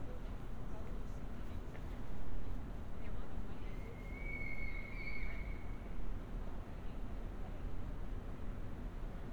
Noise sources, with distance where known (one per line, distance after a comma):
unidentified human voice, far